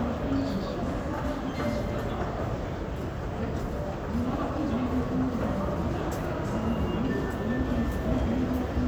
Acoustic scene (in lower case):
crowded indoor space